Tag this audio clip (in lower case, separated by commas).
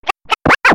scratching (performance technique), musical instrument, music